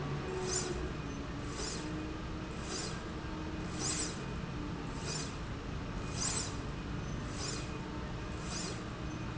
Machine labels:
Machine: slide rail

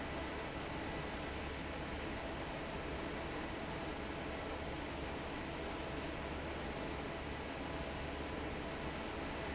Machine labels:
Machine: fan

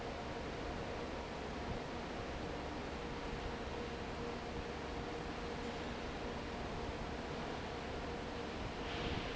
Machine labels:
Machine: fan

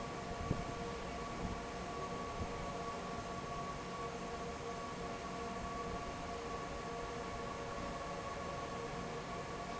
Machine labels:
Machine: fan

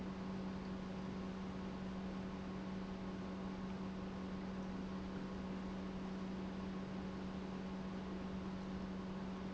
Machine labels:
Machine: pump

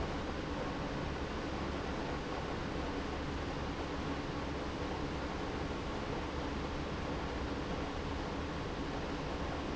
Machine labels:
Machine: pump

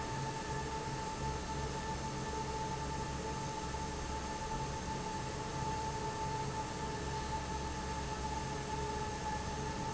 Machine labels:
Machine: fan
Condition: normal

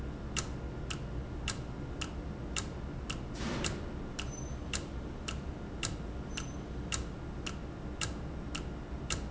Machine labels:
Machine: valve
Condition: normal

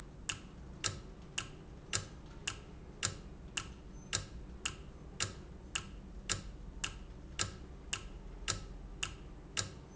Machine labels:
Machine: valve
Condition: normal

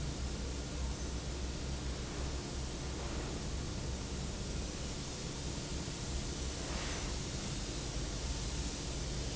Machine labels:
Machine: fan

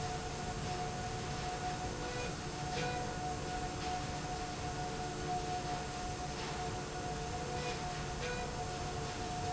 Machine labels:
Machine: slide rail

